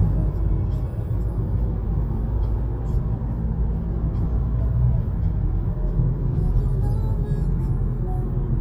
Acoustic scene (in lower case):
car